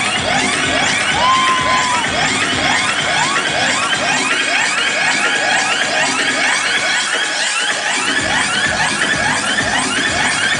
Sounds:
music

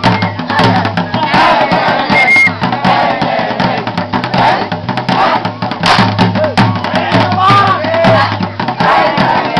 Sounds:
speech
dance music
music

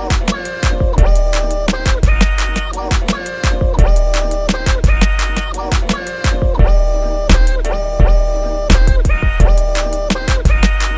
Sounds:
music
rapping
hip hop music

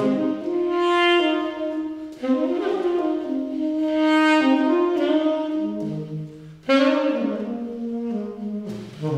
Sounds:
playing saxophone

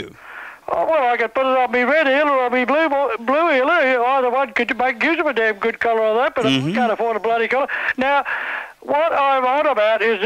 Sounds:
speech

